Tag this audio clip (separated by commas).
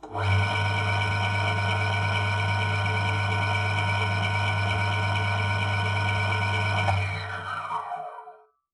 Engine, Tools